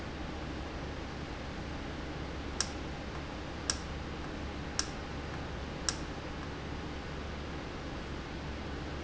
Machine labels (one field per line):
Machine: valve